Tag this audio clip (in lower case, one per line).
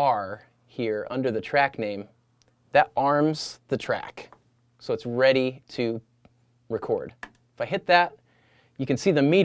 speech